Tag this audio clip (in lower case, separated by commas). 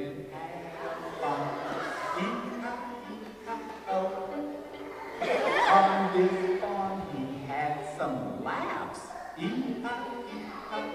violin, musical instrument, music